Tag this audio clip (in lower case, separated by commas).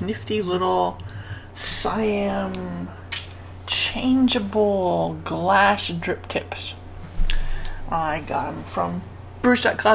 speech, inside a small room